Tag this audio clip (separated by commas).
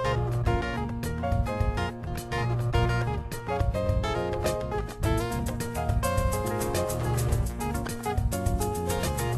Music